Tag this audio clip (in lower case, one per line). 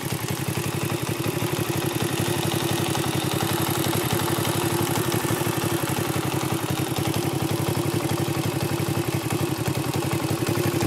motorcycle
vehicle